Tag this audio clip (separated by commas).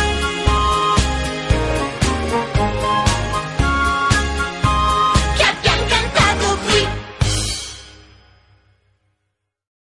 Theme music, Music